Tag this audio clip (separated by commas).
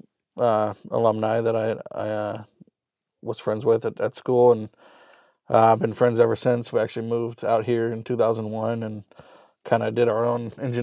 Speech